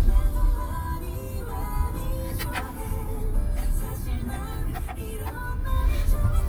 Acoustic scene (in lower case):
car